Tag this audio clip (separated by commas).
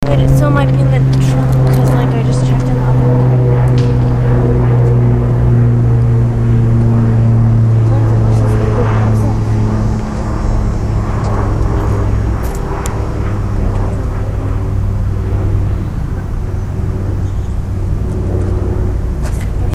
Fixed-wing aircraft, Aircraft, Vehicle